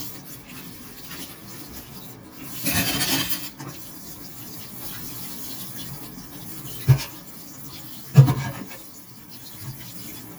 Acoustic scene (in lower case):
kitchen